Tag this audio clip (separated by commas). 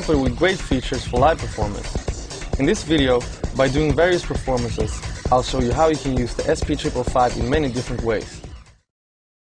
Music, Speech, Sampler